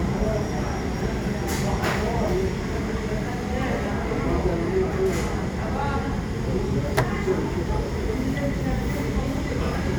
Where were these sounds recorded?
in a crowded indoor space